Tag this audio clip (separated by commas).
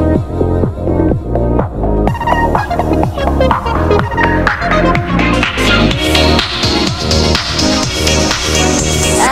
Music